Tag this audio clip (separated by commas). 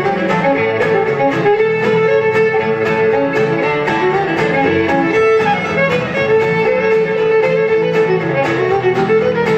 Music, fiddle, Musical instrument